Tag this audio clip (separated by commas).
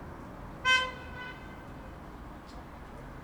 Car, Motor vehicle (road), Vehicle horn, Alarm, Vehicle